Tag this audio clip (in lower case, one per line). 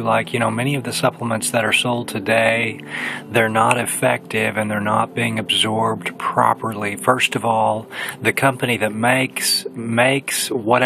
speech